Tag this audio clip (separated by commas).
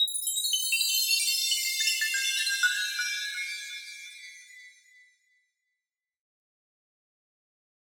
Chime, Bell